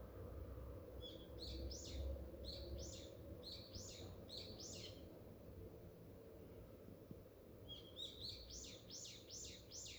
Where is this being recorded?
in a park